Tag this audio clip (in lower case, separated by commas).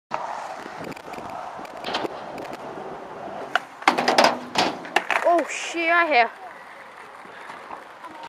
slam, speech